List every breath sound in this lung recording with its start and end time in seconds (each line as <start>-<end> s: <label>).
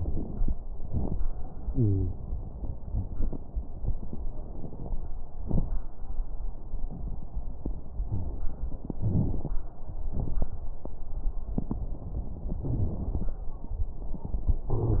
1.67-2.08 s: wheeze
14.72-15.00 s: wheeze